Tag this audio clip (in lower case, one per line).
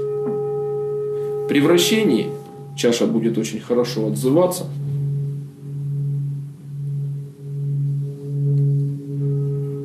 singing bowl